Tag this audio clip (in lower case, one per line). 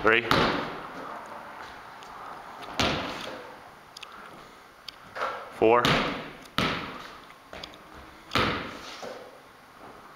basketball bounce
speech